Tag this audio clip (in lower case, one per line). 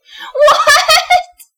laughter
human voice